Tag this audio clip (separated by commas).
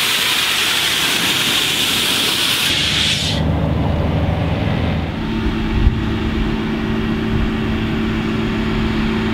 Vehicle